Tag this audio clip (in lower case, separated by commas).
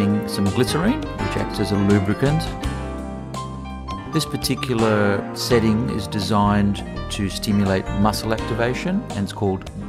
music, speech